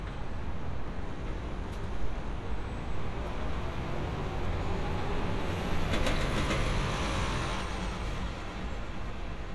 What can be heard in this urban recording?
large-sounding engine